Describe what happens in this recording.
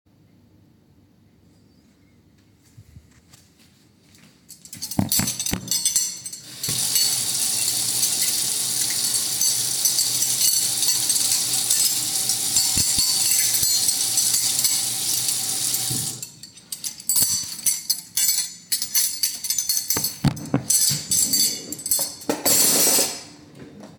I open the microwave, put a cup inside, close it, and then immediately open a nearby cabinet door, with sounds potentially overlapping.